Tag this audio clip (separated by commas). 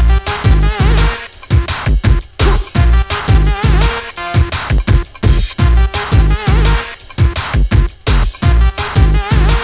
Electronic music, Soundtrack music, Music, Drum and bass